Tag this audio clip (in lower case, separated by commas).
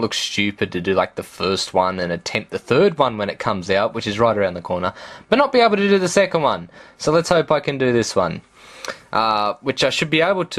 speech